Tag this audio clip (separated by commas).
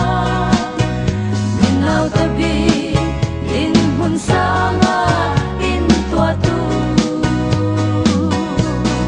Singing, Music